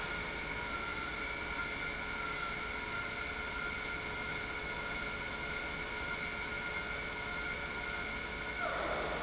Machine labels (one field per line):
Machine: pump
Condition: normal